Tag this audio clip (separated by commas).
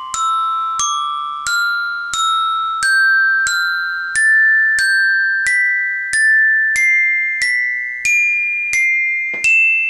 Music, Musical instrument